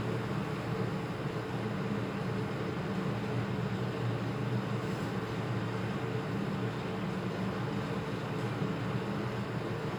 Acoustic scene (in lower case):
elevator